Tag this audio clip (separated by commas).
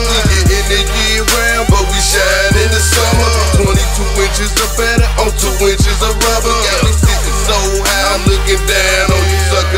Music, Pop music